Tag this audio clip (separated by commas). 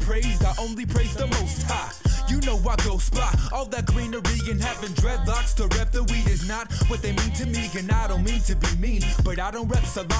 Music